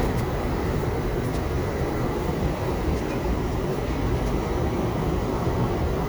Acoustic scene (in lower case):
crowded indoor space